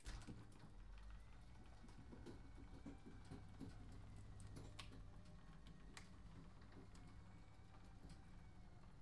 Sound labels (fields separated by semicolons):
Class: door; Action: opening